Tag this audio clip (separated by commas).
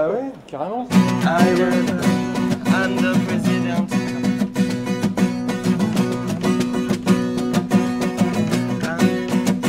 Speech, Music